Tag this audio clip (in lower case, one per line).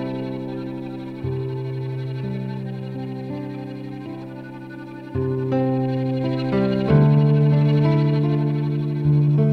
music
background music